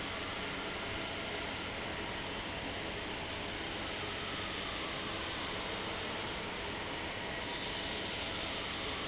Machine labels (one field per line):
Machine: fan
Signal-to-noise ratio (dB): -6 dB